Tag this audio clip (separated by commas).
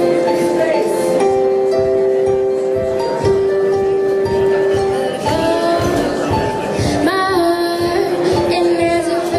Speech, Music